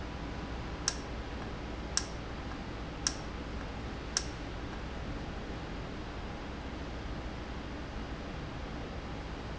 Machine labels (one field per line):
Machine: valve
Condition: normal